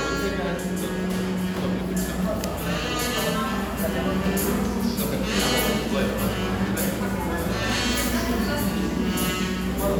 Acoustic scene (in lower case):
cafe